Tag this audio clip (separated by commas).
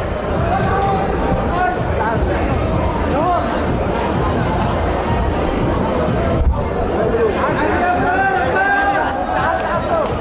Chatter, Music, Speech, inside a large room or hall